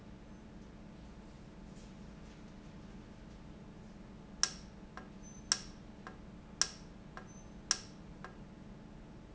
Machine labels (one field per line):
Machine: valve